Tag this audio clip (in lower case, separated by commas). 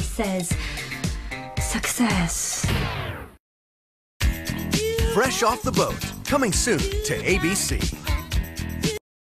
speech, music